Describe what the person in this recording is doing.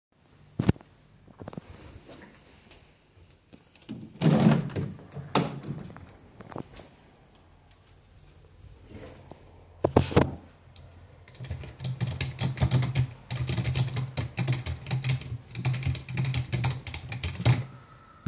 I stood up from my desk and walked to the window. I opened the window partially (on "kip") and then went back to my desk, sat down, put the phone down and started typing on the keyboard.